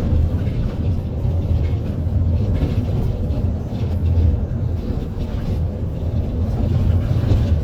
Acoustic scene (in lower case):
bus